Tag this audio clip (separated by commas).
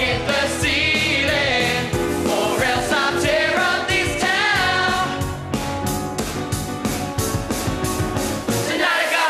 Music